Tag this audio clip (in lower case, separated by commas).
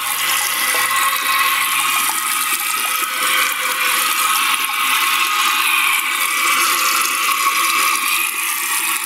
toilet flush, water